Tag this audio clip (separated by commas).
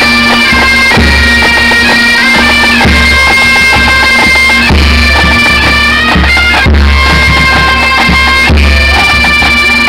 playing bagpipes, Music, Bagpipes